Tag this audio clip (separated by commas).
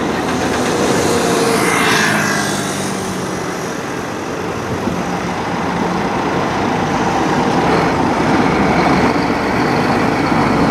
Vehicle, Truck, Car